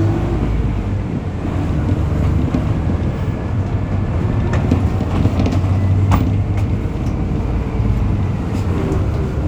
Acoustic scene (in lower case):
bus